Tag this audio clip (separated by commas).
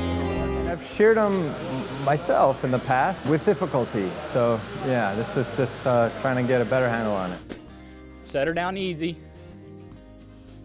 Speech, Music